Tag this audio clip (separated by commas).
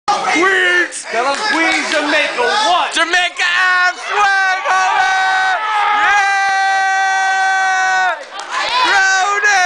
Speech